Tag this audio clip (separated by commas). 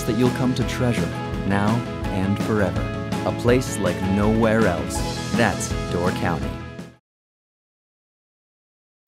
Music, Speech